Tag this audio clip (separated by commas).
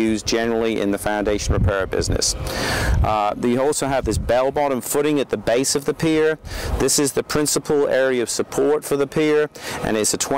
Speech